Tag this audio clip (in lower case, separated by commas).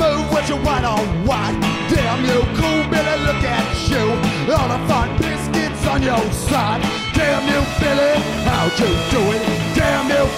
music